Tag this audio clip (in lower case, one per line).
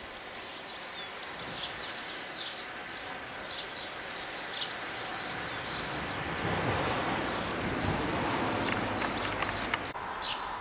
barn swallow calling